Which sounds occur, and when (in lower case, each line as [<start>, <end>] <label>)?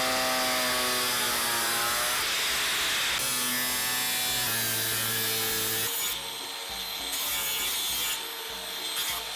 [0.00, 9.35] mechanisms